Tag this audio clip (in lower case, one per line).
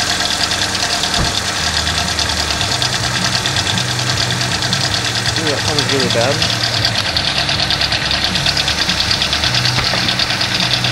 car engine knocking